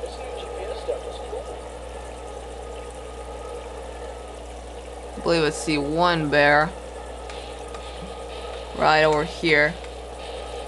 Water burbles with low male speech followed by a woman speaking as water continues to burble